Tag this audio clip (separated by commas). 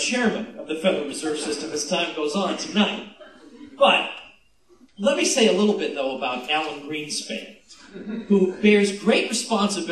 Speech, man speaking, Narration